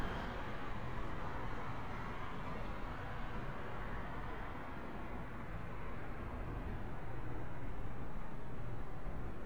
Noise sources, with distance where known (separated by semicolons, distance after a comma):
engine of unclear size, far